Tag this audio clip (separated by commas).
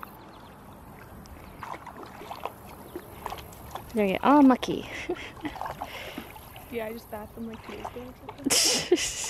Animal, Speech